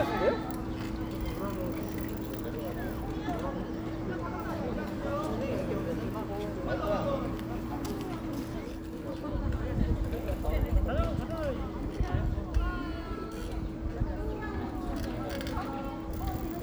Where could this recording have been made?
in a park